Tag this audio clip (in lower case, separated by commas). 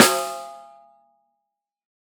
musical instrument, snare drum, drum, music, percussion